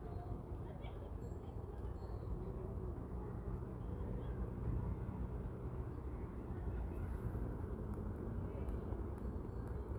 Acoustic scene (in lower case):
residential area